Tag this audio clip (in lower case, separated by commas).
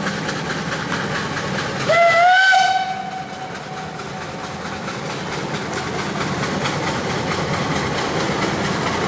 steam whistle, steam